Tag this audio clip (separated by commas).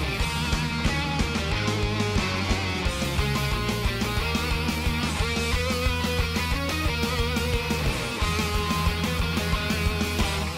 Music